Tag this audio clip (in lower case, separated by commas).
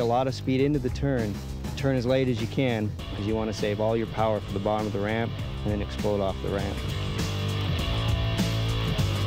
speech, music